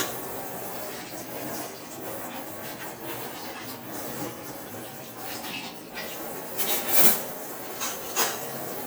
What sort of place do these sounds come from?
kitchen